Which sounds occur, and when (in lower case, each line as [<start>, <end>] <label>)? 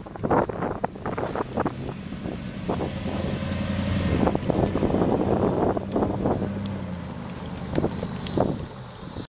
[0.00, 2.40] wind noise (microphone)
[0.00, 9.26] medium engine (mid frequency)
[0.00, 9.26] wind
[2.64, 3.42] wind noise (microphone)
[3.47, 3.55] clicking
[3.96, 6.53] wind noise (microphone)
[4.62, 4.66] clicking
[5.89, 5.98] clicking
[6.59, 6.64] clicking
[7.21, 7.27] clicking
[7.38, 7.44] clicking
[7.54, 7.58] clicking
[7.70, 7.77] clicking
[7.73, 7.93] wind noise (microphone)
[8.24, 8.30] clicking
[8.26, 8.59] wind noise (microphone)
[8.99, 9.21] wind noise (microphone)